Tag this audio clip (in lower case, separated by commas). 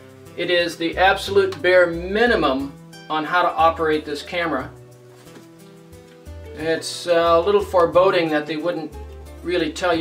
music, speech